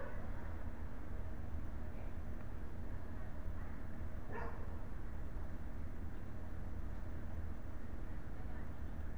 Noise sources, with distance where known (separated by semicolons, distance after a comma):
person or small group talking; dog barking or whining